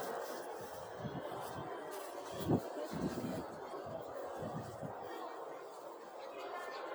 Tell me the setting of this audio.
residential area